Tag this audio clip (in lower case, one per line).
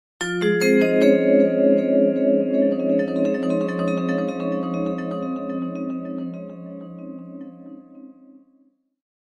classical music
music
keyboard (musical)
piano
musical instrument
xylophone